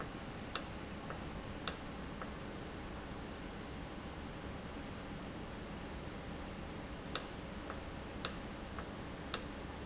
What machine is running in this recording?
valve